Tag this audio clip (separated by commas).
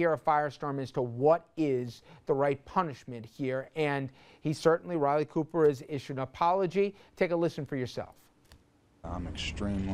Speech